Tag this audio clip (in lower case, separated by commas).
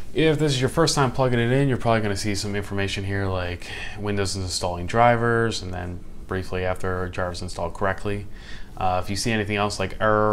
speech